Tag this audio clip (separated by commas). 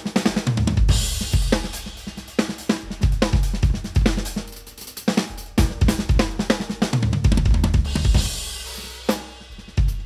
playing bass drum